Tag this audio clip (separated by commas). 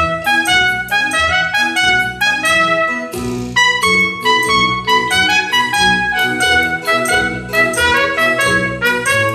Brass instrument, Music, Classical music, playing trumpet, Musical instrument, Trumpet